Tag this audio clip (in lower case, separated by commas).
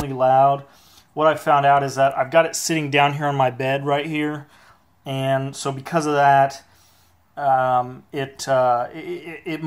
speech